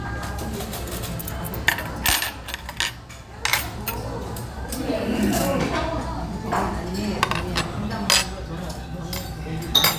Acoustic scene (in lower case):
restaurant